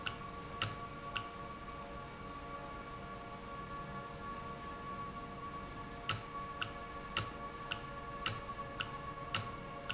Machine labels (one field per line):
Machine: valve